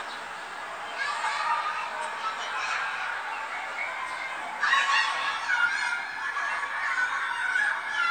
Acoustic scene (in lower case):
residential area